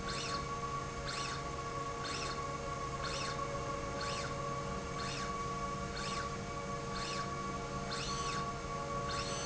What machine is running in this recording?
slide rail